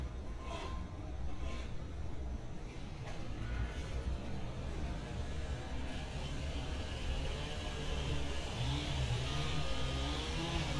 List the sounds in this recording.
unidentified powered saw, reverse beeper